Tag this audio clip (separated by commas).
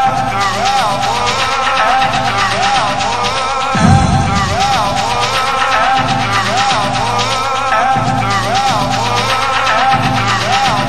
Music